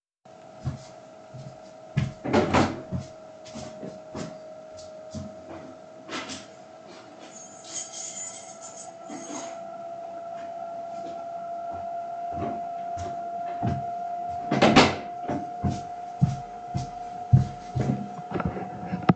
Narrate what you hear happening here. I walk from the living_room to the bedroom and open the Door. I pick up my keychain put it in my pack for the University and leava the room. At the End I close the bedroom door.